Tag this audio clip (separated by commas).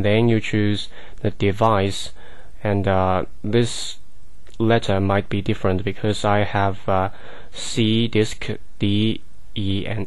Speech